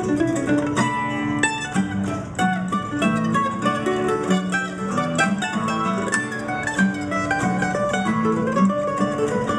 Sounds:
musical instrument, pizzicato, music

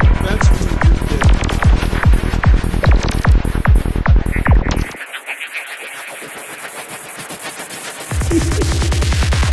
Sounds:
trance music, music, electronic music

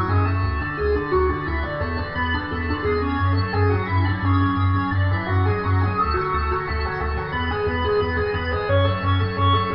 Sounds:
music

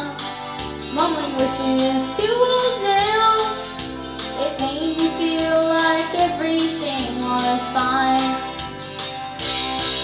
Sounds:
child singing, music

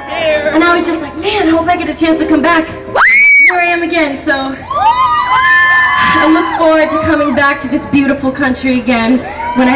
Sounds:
speech

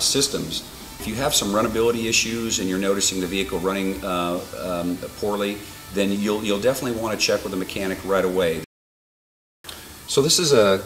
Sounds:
speech, music

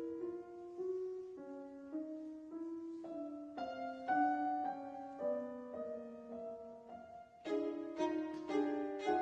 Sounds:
fiddle, musical instrument, music

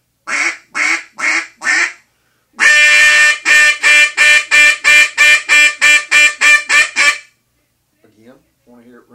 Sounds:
speech, quack

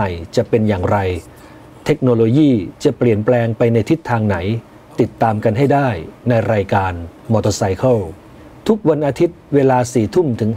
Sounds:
speech

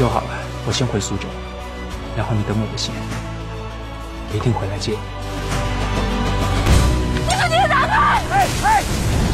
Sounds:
music, speech

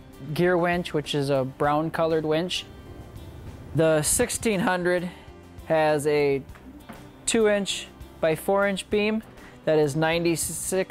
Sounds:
music, speech

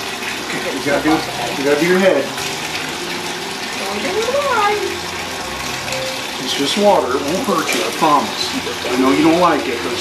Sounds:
water, sink (filling or washing), water tap

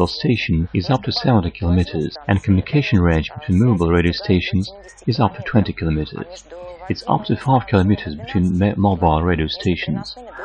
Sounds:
radio, speech

